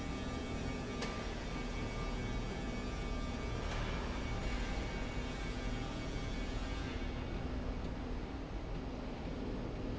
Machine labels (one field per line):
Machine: slide rail